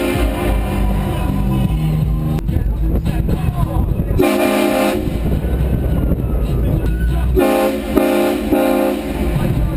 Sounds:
train horning

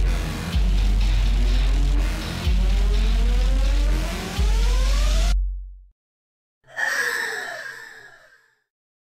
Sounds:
music

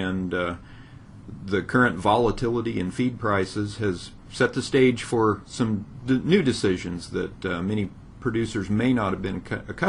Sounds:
speech

